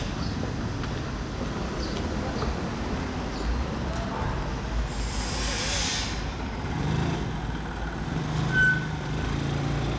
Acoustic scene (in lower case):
residential area